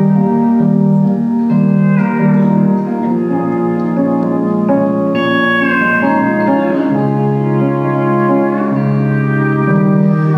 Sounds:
music

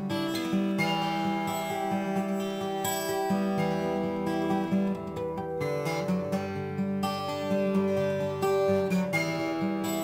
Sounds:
musical instrument
acoustic guitar
guitar
plucked string instrument
music

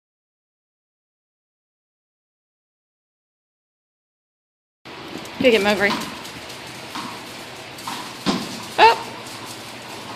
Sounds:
speech
whimper (dog)

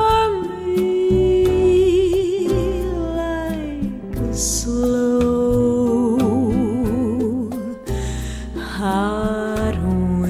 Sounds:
music

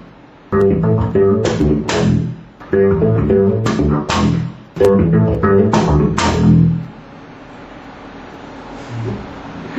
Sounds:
playing double bass

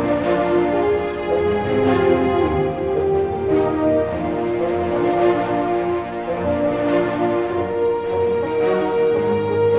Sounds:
new-age music
music

